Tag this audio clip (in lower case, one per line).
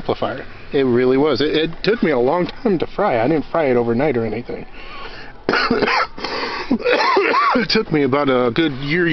speech